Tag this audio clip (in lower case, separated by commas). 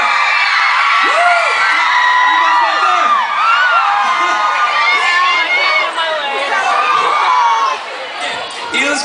speech, inside a public space